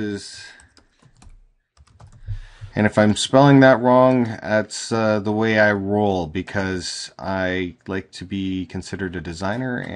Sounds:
Speech

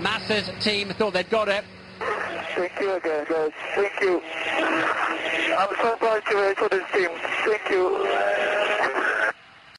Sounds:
Speech

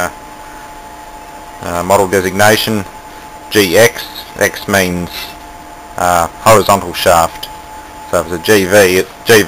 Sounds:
Speech

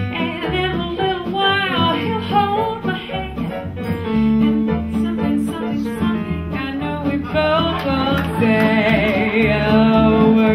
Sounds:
Female singing, Music

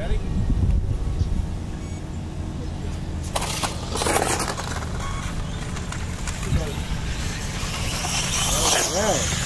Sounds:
Speech

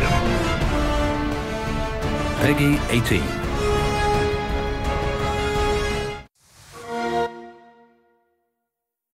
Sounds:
Music, Speech

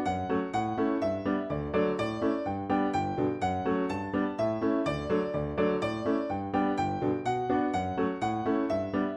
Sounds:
Musical instrument, Music

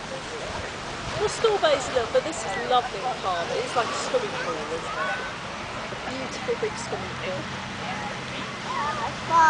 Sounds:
Speech

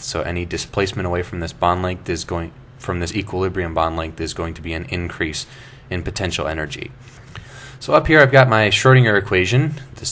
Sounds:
Speech

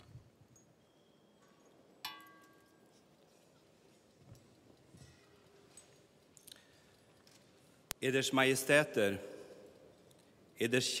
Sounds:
Narration, Speech, Male speech

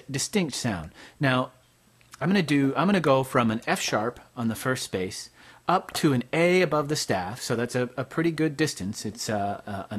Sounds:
Speech

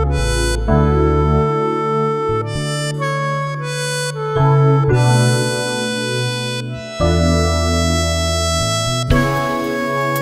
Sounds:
Wind instrument, Harmonica

